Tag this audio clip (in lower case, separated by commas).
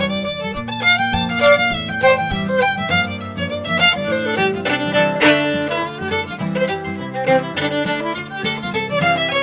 musical instrument, music, fiddle